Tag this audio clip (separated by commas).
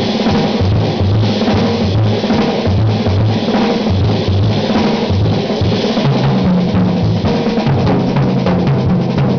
Snare drum, Percussion, Drum, Bass drum, Drum roll, Rimshot, Drum kit